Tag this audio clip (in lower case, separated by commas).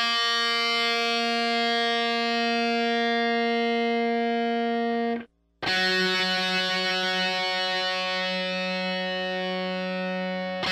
strum, guitar, music, musical instrument, plucked string instrument